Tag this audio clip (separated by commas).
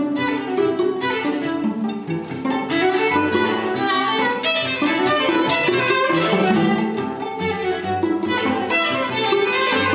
Orchestra, Music, Musical instrument, Bowed string instrument, Classical music, Cello, Violin